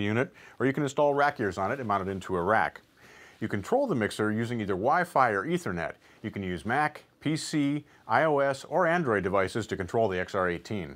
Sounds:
Speech

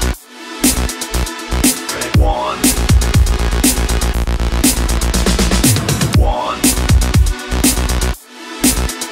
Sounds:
Electronic dance music, Electronic music, Electronica, Music

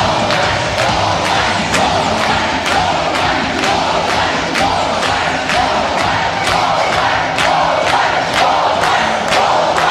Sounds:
Music, inside a public space

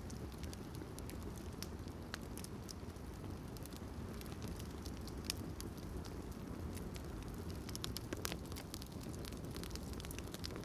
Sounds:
fire crackling

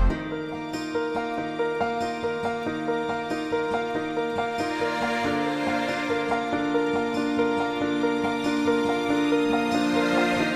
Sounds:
Background music

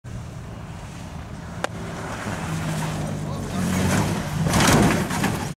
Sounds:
Speech, Vehicle

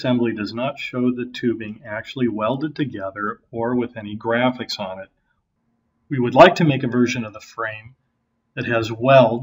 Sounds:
Speech

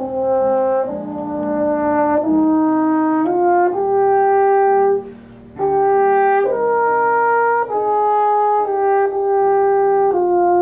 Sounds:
Music, Brass instrument, Wind instrument, Trumpet

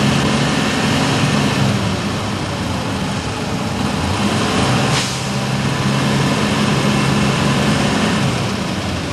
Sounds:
Vehicle, driving buses, Bus

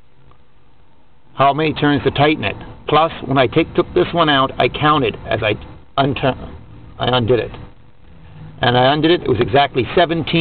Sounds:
Speech

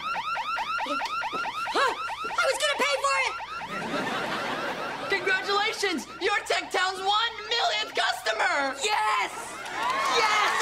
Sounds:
Speech

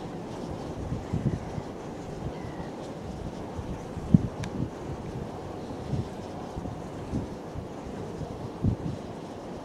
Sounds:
outside, rural or natural, Ocean

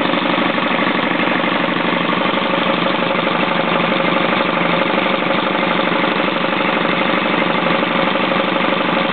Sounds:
Idling, Engine

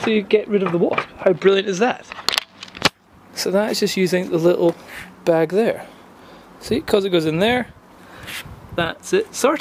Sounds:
Speech

